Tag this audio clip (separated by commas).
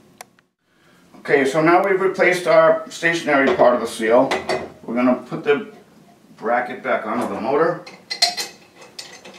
Speech